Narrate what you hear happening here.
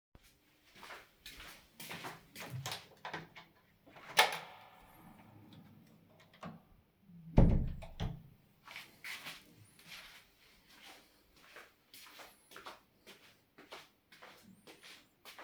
I begin by walking down the hallway, with the sound of my footsteps echoing. I reach the door and pull it open, stepping into the living room. I then turn around and close the door firmly behind me and i continue walking.